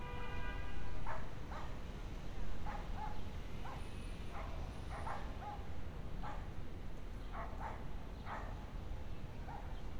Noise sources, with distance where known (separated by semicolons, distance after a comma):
car horn, near; dog barking or whining, far